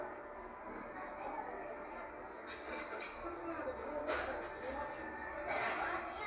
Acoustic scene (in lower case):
cafe